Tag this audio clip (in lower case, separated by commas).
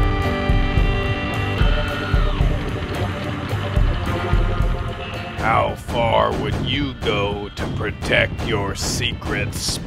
music, speech